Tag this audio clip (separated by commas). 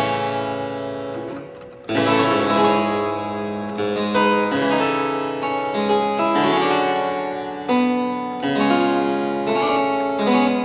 playing harpsichord, Harpsichord, Music